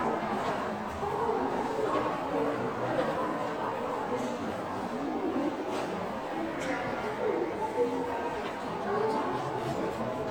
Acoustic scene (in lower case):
crowded indoor space